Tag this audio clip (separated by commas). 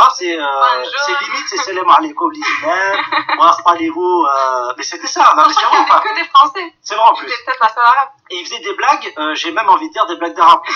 Speech, Radio